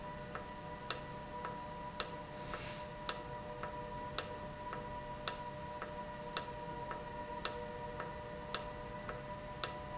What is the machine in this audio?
valve